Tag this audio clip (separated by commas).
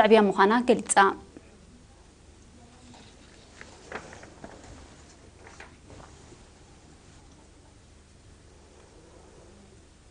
Speech